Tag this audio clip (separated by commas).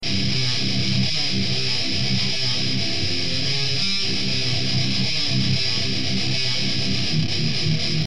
Musical instrument, Music, Guitar, Plucked string instrument